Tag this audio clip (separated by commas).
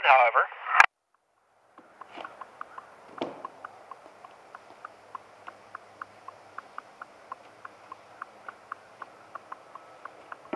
Speech